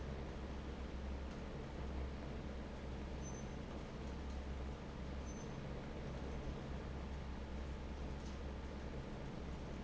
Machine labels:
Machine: fan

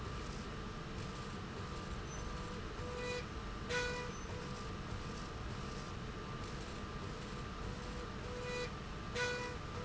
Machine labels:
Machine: slide rail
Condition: normal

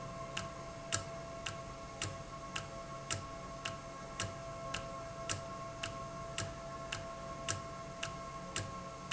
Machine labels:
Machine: valve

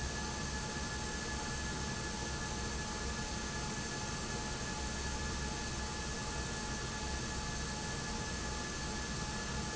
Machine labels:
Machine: fan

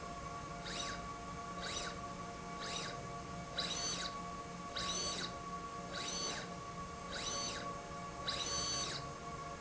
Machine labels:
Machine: slide rail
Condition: abnormal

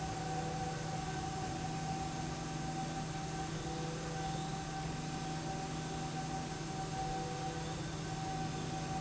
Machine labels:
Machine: slide rail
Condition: normal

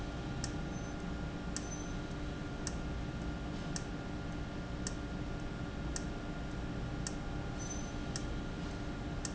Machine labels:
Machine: valve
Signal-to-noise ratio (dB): -6 dB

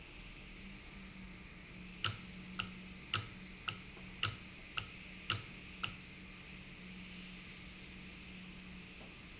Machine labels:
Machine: valve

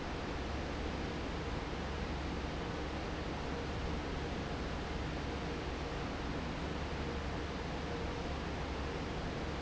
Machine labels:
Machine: fan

